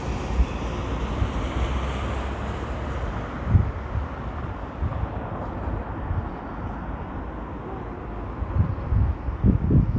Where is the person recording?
in a residential area